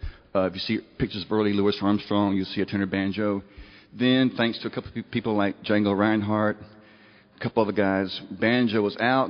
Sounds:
speech

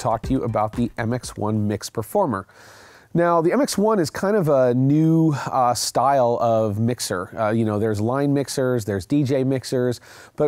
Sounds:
music, speech

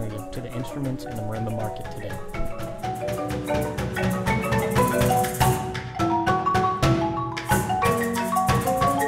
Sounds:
musical instrument, xylophone, music, speech

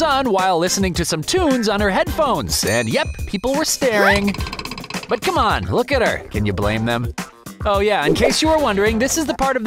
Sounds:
music, speech

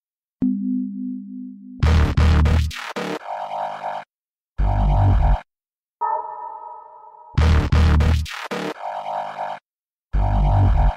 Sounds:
music

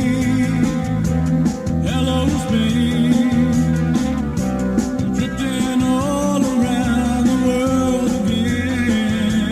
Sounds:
music

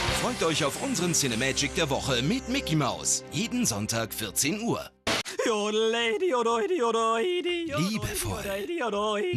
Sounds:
speech, music

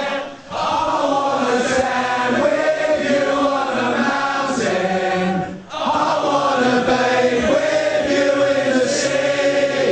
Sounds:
male singing, choir

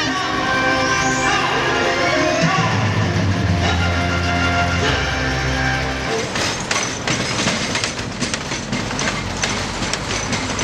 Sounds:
music, speech

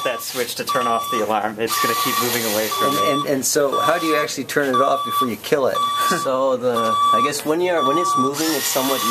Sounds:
alarm, speech, alarm clock

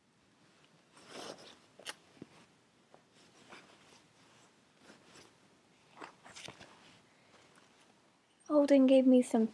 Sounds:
speech

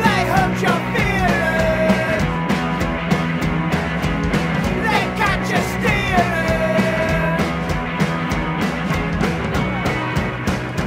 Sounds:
music

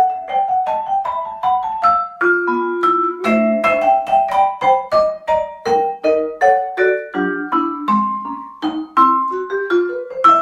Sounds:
playing vibraphone

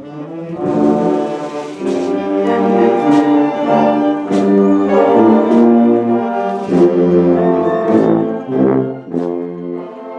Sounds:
trombone, brass instrument, trumpet

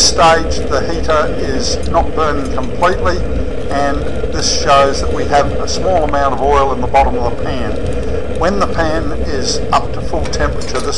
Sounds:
speech

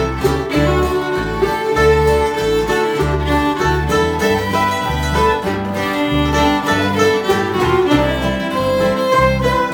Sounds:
pizzicato, violin, bowed string instrument

